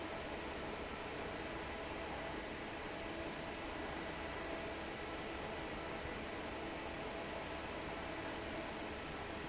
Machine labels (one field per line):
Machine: fan